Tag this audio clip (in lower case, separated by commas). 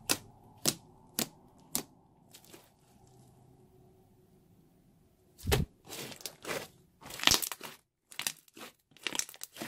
squishing water